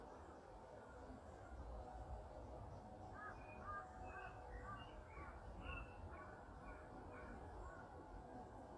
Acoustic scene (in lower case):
park